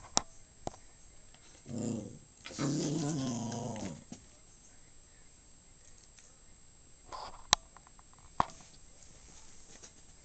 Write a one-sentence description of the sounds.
A dog growling